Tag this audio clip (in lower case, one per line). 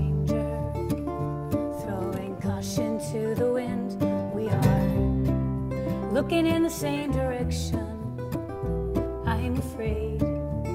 music